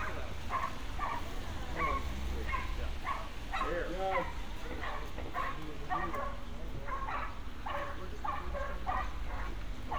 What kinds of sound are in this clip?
person or small group talking, dog barking or whining